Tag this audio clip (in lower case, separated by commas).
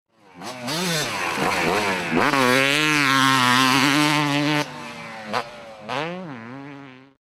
motor vehicle (road), vehicle, motorcycle